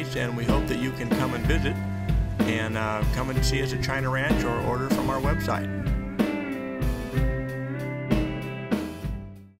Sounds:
music, speech

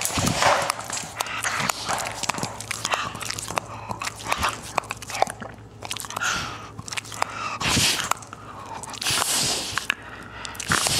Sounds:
pets, animal, dog, inside a small room

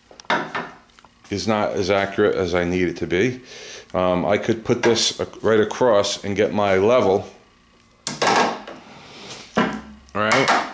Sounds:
speech, inside a small room

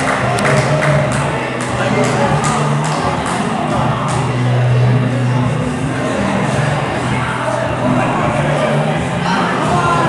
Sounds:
speech, inside a large room or hall

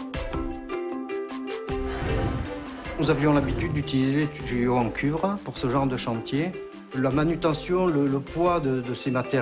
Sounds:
music, speech

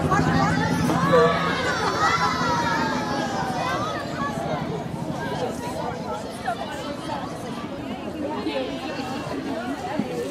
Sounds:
speech

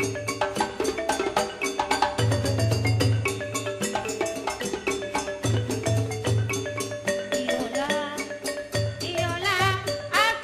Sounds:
marimba, glockenspiel, percussion, mallet percussion

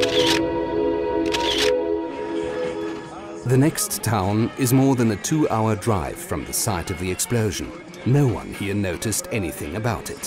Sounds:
speech, music

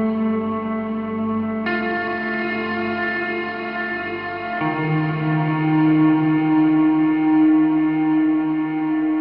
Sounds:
mantra, music

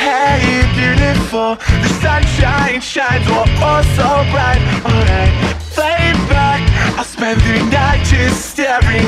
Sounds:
music

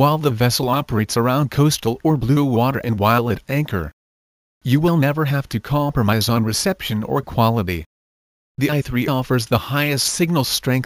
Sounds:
speech

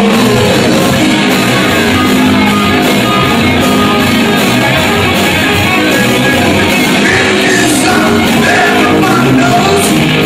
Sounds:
music, rock and roll

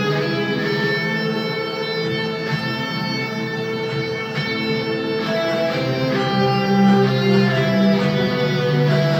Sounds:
music

